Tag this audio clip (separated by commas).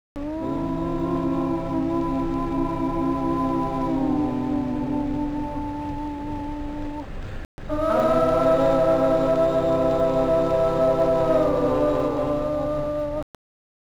Human voice, Singing